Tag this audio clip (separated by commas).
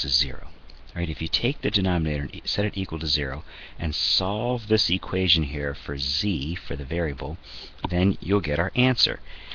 Speech